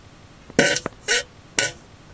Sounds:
fart

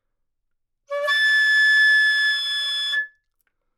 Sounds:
music, woodwind instrument, musical instrument

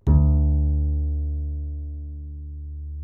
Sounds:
bowed string instrument, musical instrument, music

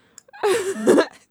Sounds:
human voice, laughter

